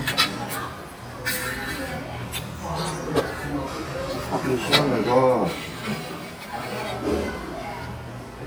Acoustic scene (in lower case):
crowded indoor space